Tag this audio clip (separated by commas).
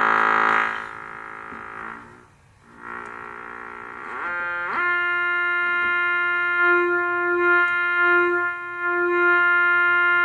Sampler, Music